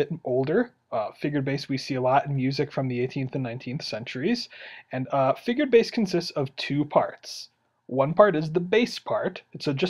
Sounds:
Speech

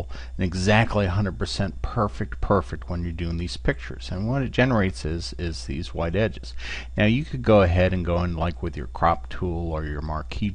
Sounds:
Speech

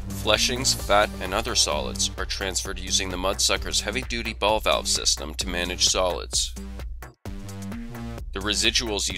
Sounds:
Music, Speech

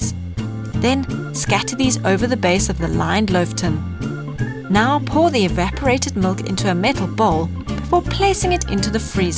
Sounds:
Speech, Music

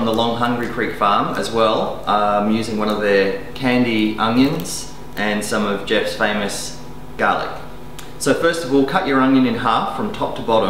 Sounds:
Speech

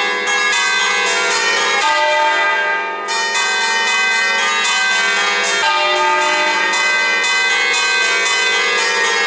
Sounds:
Bell

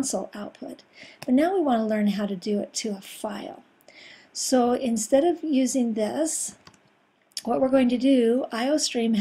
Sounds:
Speech

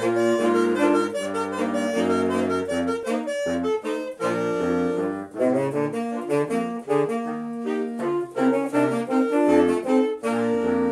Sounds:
Music

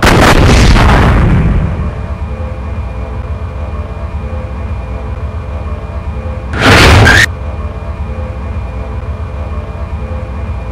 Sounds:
Artillery fire

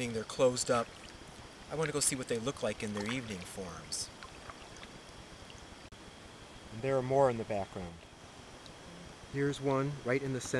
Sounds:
Stream, Speech

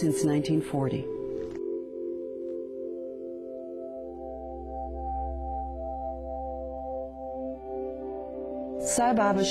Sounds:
Music, inside a large room or hall, Speech

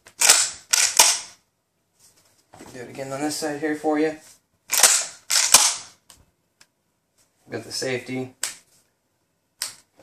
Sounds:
Speech, inside a small room

